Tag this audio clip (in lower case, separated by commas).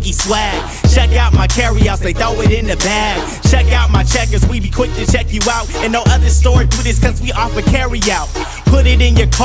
music, theme music